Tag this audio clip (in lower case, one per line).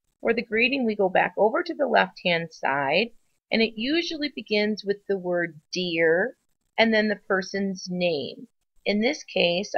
speech